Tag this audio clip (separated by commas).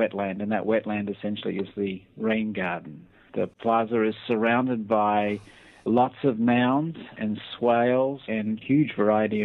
Speech